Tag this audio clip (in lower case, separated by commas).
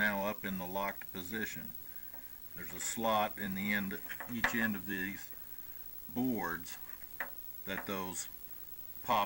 inside a small room, speech